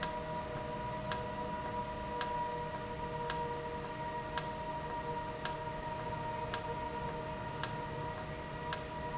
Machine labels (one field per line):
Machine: valve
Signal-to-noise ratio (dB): -6 dB